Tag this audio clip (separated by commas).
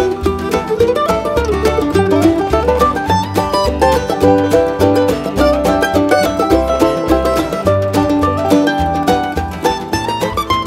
Guitar, Musical instrument, Music, Electric guitar, Plucked string instrument